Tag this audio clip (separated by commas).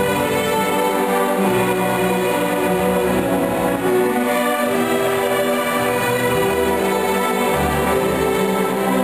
Music